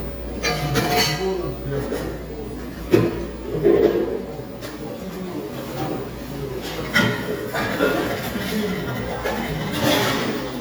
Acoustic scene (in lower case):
cafe